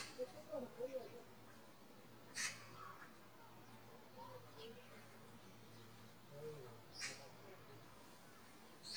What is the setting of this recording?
park